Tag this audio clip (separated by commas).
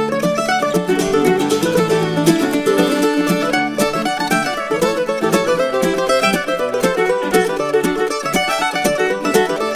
Music